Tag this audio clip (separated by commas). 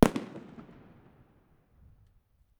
Fireworks, Explosion